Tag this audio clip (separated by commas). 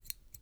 Scissors, home sounds